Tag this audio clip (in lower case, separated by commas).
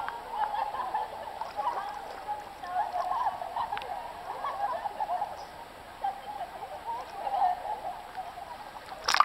bird, splash, speech